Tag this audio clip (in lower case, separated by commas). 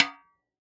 musical instrument, music, snare drum, drum, percussion